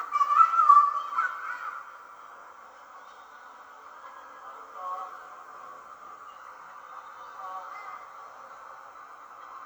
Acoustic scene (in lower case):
park